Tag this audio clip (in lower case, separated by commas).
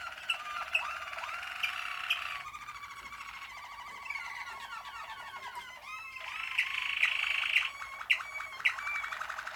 pets, bird